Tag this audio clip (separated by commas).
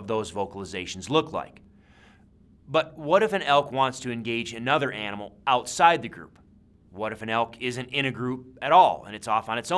Speech